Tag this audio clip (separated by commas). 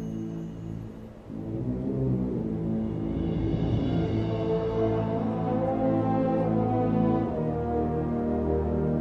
Music